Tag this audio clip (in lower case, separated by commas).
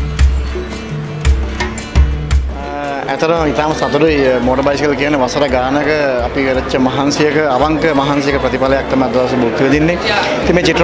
speech, music